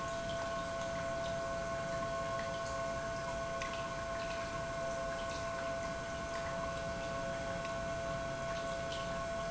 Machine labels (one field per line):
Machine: pump